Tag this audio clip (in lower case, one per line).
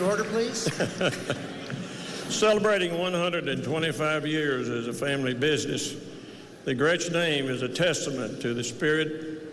speech